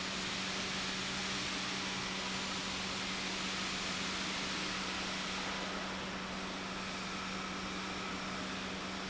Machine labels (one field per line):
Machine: pump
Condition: normal